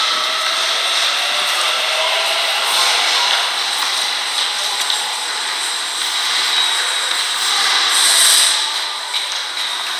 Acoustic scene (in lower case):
subway station